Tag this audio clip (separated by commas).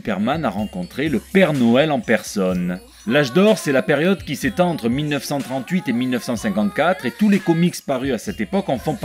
Speech, Music